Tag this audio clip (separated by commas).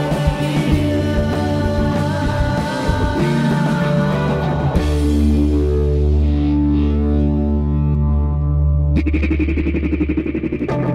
Psychedelic rock, Guitar, Plucked string instrument, Music, Rock music